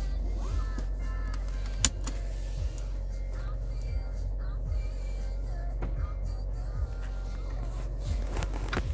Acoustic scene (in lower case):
car